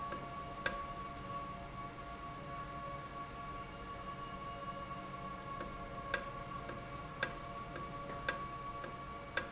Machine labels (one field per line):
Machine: valve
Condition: normal